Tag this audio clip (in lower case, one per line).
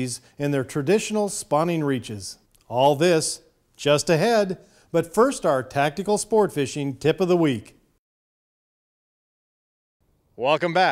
speech